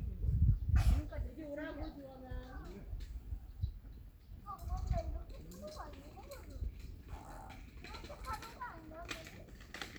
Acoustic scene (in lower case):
park